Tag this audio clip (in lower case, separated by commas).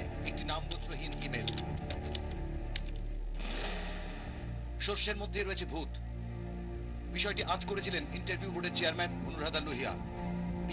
speech, music